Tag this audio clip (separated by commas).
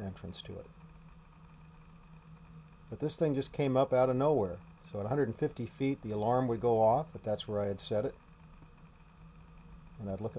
Speech